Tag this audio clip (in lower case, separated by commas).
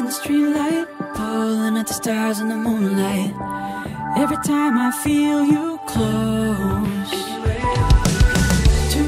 music, speech, exciting music